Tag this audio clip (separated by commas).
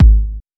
Thump